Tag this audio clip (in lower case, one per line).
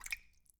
rain
raindrop
water